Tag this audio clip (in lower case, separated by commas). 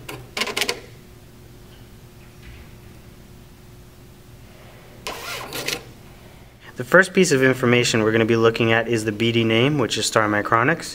speech, printer